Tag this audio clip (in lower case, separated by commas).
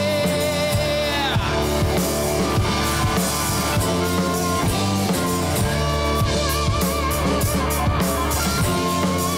singing, music